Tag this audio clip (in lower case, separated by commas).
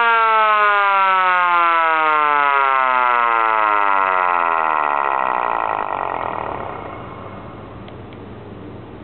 siren, civil defense siren